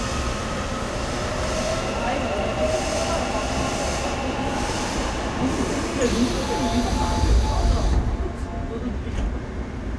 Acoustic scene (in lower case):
subway train